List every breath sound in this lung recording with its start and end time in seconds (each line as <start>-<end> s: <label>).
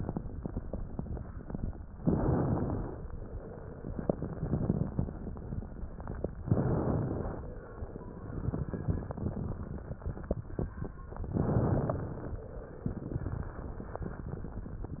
1.97-3.00 s: inhalation
1.97-3.00 s: crackles
3.91-5.09 s: exhalation
3.91-5.09 s: crackles
6.43-7.46 s: inhalation
6.43-7.46 s: crackles
8.39-10.04 s: exhalation
8.39-10.04 s: crackles
11.38-12.41 s: inhalation
11.38-12.41 s: crackles
12.96-14.61 s: exhalation
12.96-14.61 s: crackles